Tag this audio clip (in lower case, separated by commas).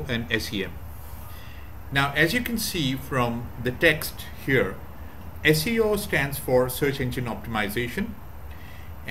speech